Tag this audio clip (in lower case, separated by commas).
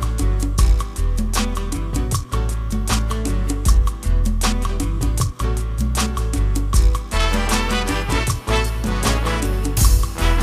jingle (music), funk, music